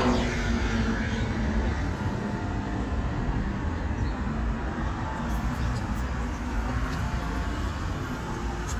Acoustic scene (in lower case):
residential area